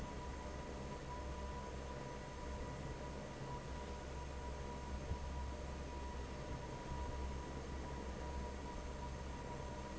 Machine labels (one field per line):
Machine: fan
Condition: normal